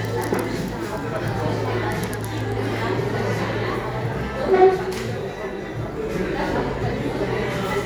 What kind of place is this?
cafe